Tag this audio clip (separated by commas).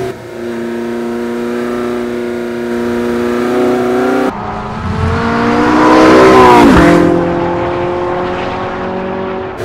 Race car